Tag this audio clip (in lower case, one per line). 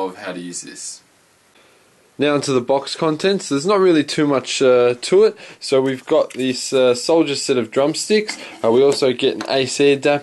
speech